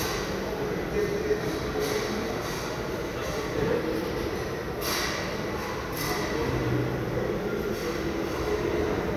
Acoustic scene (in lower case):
restaurant